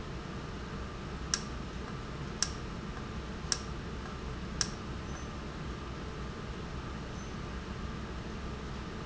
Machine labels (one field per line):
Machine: valve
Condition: normal